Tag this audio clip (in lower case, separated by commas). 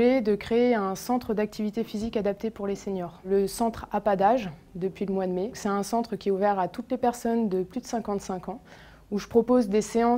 speech